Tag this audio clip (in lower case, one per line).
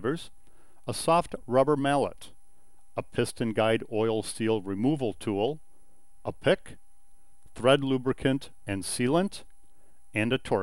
speech